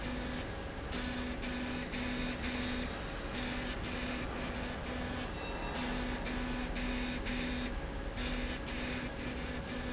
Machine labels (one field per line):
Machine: slide rail